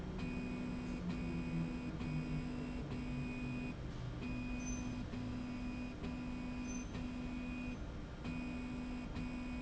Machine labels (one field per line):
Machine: slide rail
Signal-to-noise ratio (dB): 0 dB